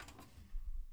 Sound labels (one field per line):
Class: drawer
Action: opening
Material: wooden